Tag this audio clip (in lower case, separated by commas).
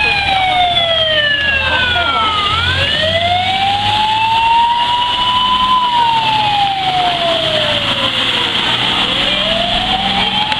fire truck siren